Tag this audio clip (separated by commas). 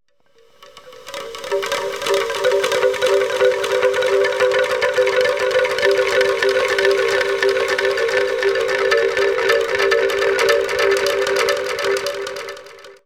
Chime, Bell, Wind chime